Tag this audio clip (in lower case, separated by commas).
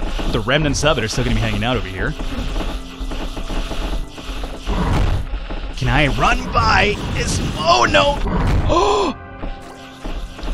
speech, music